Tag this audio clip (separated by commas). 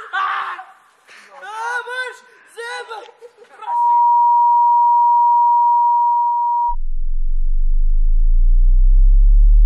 Sine wave